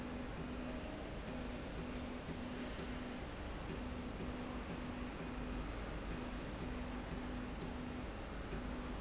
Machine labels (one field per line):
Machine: slide rail